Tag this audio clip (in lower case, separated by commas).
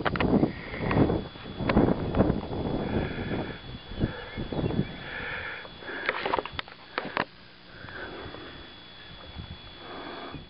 outside, rural or natural